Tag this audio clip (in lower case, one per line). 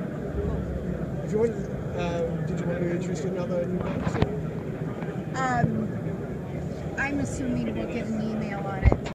speech